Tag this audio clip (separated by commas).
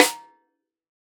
Percussion, Musical instrument, Music, Snare drum, Drum